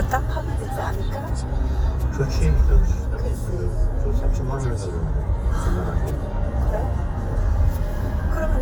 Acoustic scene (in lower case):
car